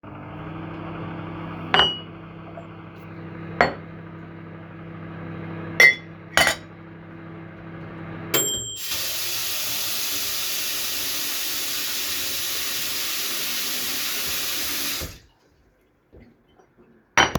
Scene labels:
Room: kitchen; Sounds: microwave, cutlery and dishes, running water, footsteps

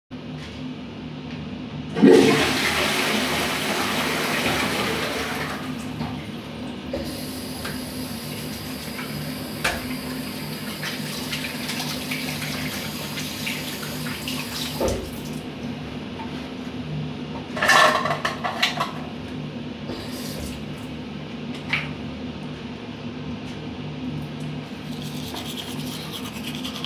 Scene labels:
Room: bathroom; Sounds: toilet flushing, running water

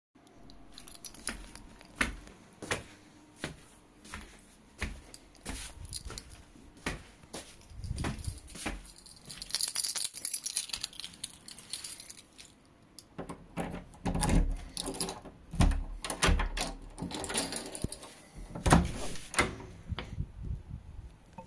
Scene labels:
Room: hallway; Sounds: keys, footsteps, door (more than once)

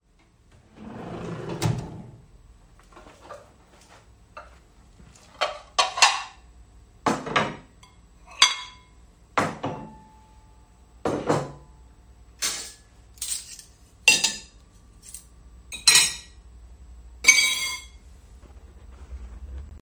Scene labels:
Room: kitchen; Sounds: wardrobe or drawer, cutlery and dishes

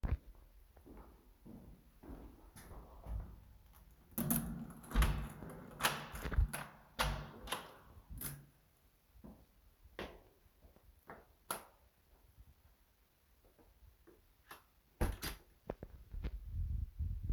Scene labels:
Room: hallway; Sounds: footsteps, door (more than once), light switch

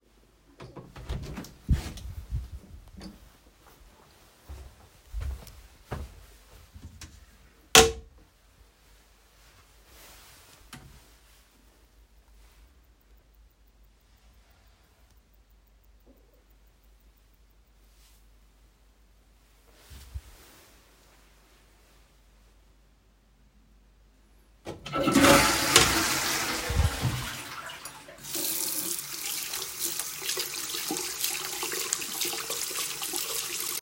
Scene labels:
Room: bathroom; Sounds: footsteps, toilet flushing, running water

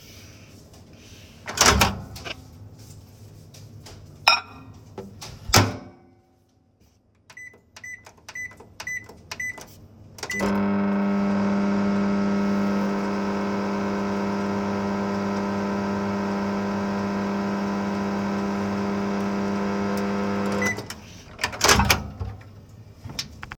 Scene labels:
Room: kitchen; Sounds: microwave, cutlery and dishes

